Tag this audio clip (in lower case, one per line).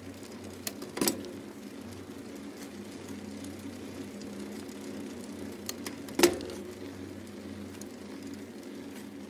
bicycle